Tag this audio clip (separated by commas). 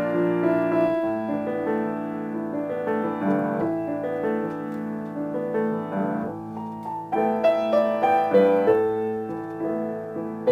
Music, Lullaby